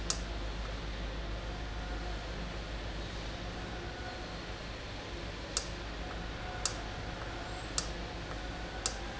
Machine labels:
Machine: valve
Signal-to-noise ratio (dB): -6 dB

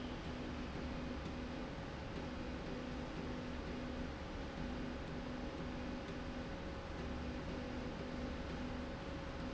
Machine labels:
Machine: slide rail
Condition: normal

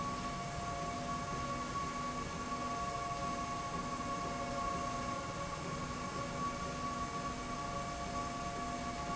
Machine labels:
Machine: slide rail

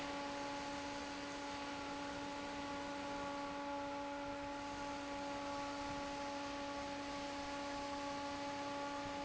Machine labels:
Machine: fan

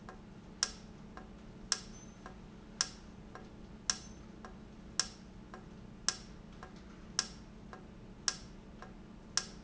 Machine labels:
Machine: valve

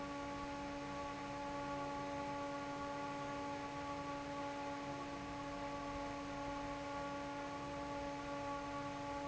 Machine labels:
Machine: fan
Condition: normal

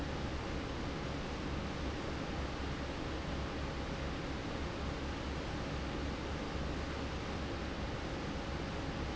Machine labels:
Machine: fan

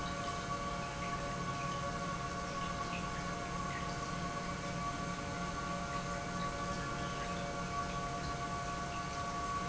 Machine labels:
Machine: pump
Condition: normal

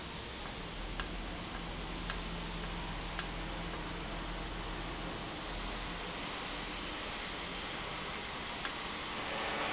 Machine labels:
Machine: valve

